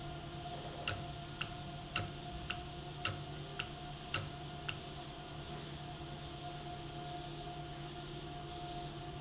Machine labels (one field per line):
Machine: valve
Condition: normal